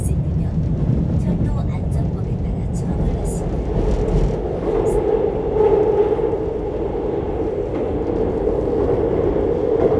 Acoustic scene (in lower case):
subway train